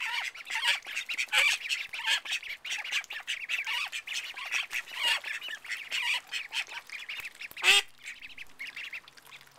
Ducks quacking and water splashing